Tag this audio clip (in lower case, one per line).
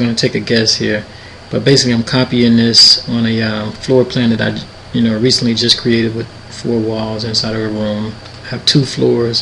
speech